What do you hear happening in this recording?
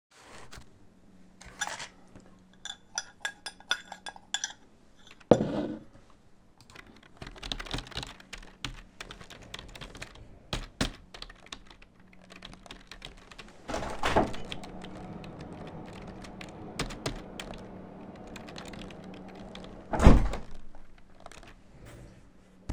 Stirring coffe with a spoon and putting it down. While typing, a window gets opened. Sounds from outside, then window closes